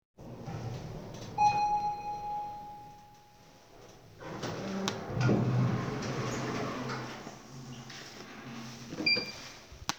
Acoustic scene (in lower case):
elevator